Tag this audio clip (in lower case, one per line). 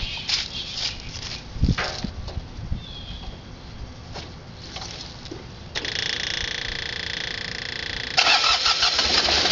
footsteps